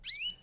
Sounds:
tweet, Animal, Bird, Wild animals, bird song

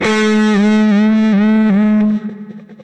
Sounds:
Guitar, Plucked string instrument, Electric guitar, Music, Musical instrument

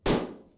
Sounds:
dishes, pots and pans, home sounds

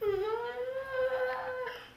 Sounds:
Human voice, sobbing

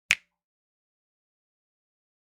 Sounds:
Hands, Finger snapping

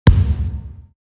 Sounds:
Thump

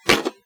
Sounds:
thud

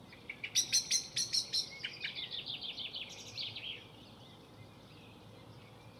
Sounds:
Wild animals, Bird, Animal, bird song

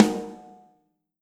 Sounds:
Music, Snare drum, Musical instrument, Drum, Percussion

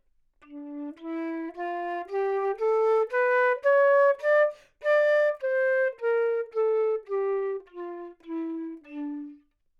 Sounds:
Musical instrument, Wind instrument, Music

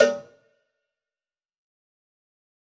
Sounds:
Bell, Cowbell

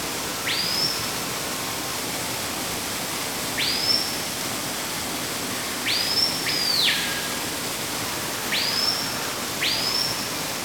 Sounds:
Water

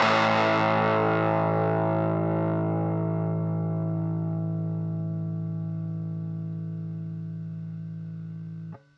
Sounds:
Guitar, Musical instrument, Plucked string instrument, Music

